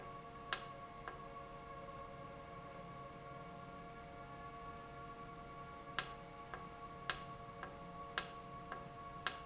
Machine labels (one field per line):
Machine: valve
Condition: normal